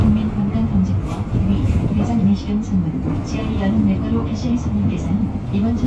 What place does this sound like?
bus